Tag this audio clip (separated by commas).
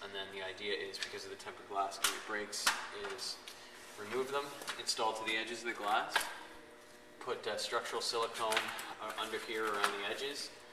Speech